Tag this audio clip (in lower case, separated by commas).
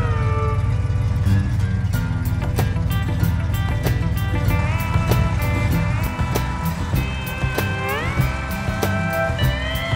music